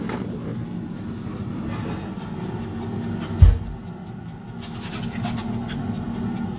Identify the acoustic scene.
kitchen